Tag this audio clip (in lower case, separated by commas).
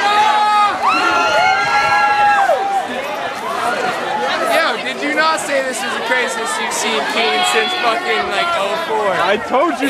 speech, crowd